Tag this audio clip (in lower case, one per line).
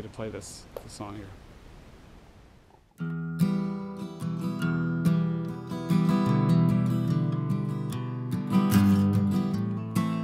speech
music